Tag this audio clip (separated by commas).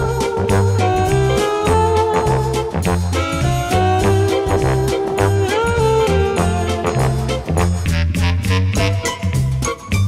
Music